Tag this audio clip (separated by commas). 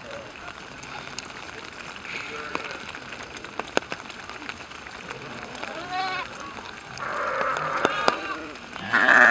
Bleat, Sheep